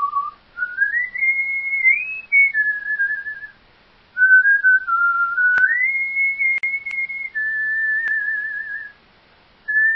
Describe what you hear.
A man whistling